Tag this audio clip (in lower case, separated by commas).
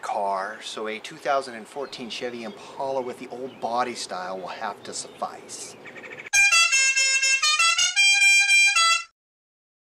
speech, music, outside, rural or natural